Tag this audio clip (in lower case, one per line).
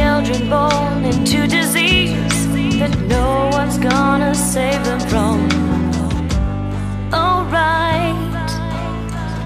music